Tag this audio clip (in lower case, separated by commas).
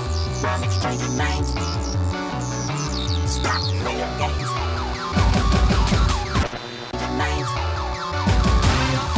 music